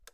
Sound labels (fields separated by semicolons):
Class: switch; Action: being turned off; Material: plastic